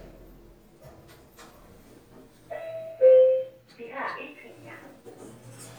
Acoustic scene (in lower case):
elevator